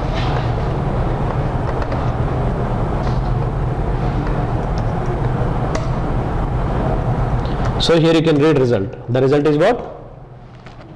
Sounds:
inside a small room, Speech

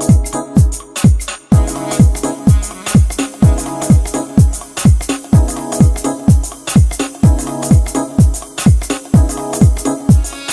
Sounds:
Music

